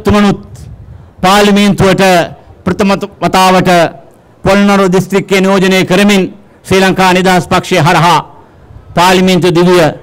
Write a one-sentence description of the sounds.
A man is giving a speech